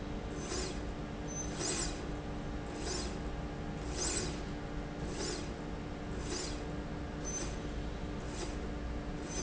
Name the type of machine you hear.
slide rail